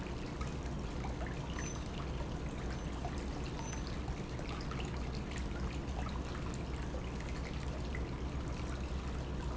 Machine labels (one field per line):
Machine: pump